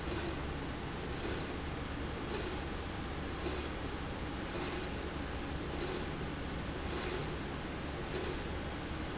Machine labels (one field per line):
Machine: slide rail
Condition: normal